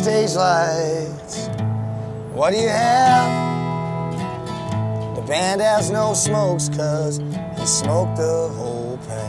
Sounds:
music

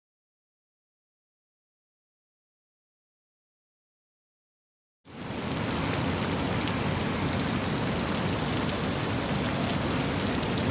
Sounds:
outside, urban or man-made
silence

